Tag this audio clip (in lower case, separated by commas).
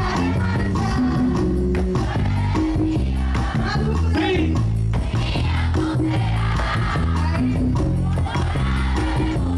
speech, music